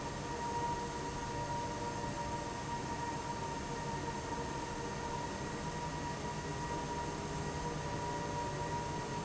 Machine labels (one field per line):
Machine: fan